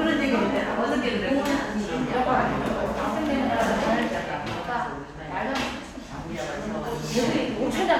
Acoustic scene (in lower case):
crowded indoor space